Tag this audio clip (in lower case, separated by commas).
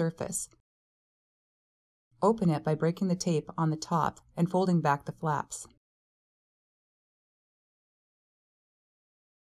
speech